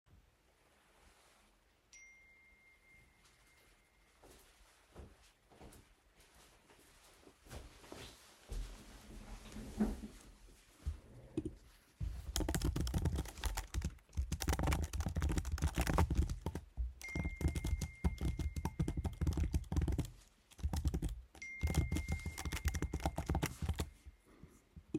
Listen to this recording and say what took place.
I get a notification and walk to my desk. I sit down in my chair and start typing. I receive another notification while typing.